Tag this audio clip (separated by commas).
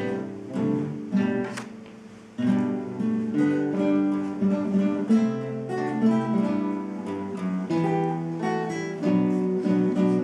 Acoustic guitar, Guitar, Music, Strum, Musical instrument